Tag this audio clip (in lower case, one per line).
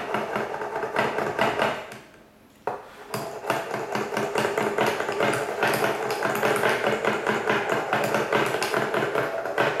tools